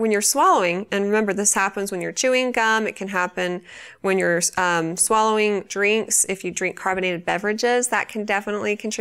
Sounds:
speech

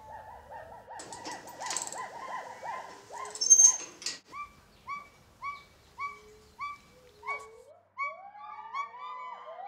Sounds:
gibbon howling

